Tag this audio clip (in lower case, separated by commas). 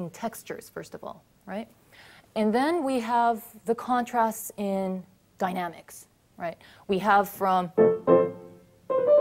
speech, piano, musical instrument, music, keyboard (musical)